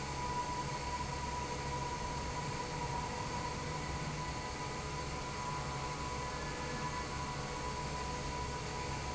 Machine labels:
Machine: fan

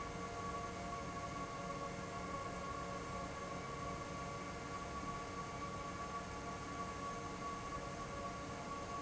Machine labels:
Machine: fan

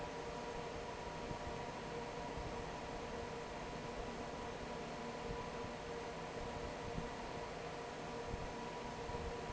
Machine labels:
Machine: fan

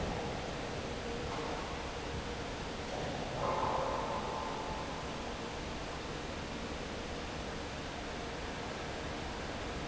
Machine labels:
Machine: fan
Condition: normal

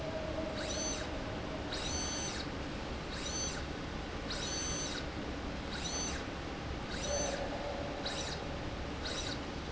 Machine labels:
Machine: slide rail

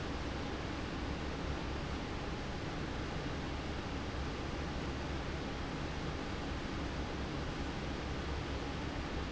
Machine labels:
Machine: fan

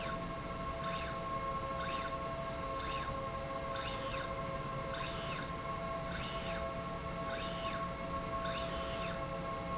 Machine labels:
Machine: slide rail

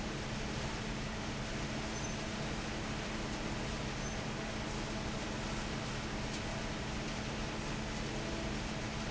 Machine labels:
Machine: fan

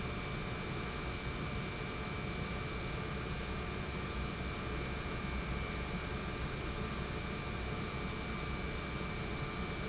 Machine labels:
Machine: pump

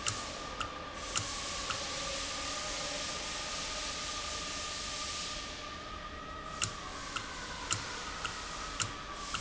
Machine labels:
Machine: valve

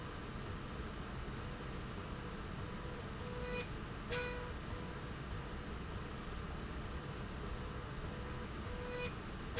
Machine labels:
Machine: slide rail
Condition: normal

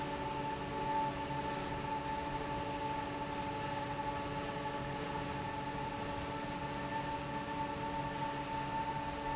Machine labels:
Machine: fan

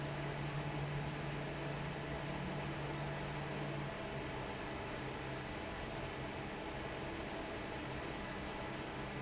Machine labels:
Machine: fan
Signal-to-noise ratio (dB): 0 dB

